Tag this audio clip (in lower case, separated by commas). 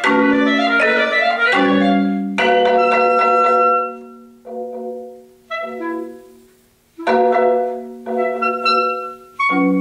playing clarinet, clarinet, percussion